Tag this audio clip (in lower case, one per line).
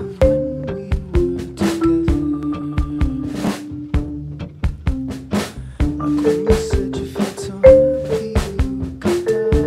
percussion
music